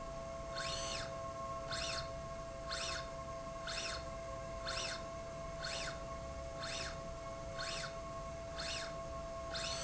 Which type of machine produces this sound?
slide rail